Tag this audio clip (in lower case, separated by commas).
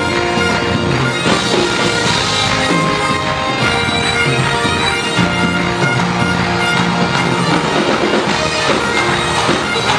bagpipes, playing bagpipes, woodwind instrument